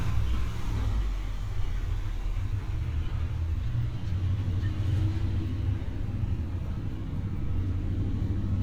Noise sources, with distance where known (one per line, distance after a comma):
engine of unclear size, far